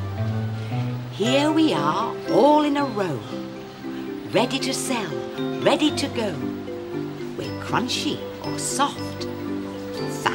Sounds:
Speech, Music

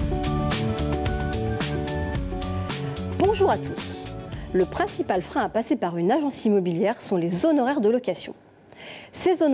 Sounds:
Speech, Music

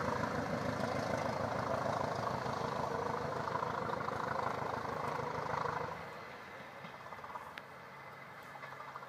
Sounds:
Vehicle, Train, Railroad car, Rail transport

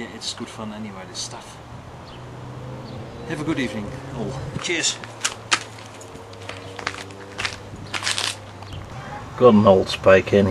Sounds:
Speech

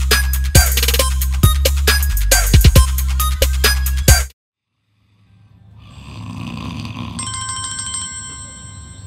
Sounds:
Hip hop music, Music

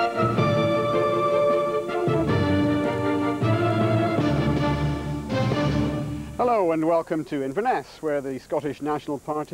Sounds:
Speech, Music, monologue, man speaking

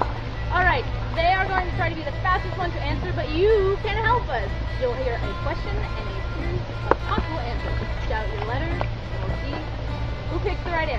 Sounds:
Music, Speech

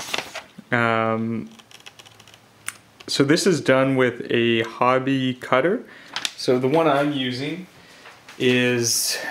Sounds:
Speech, Computer keyboard, Typing

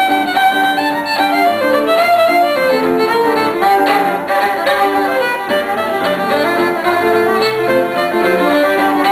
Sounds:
Music

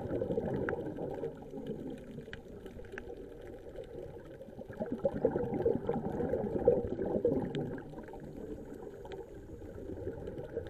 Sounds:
scuba diving

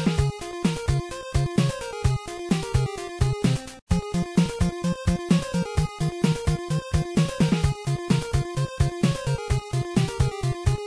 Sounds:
Music

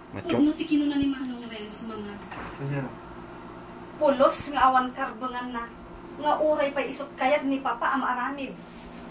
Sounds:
Speech

